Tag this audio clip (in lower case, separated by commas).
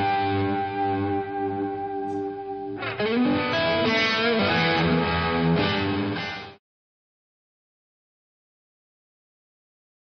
music